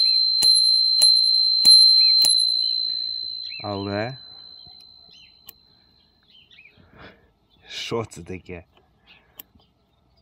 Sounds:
Speech

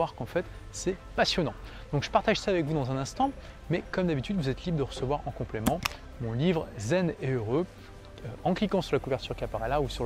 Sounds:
Music, Speech

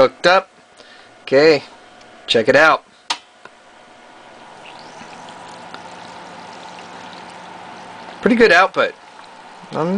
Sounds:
Speech, Liquid

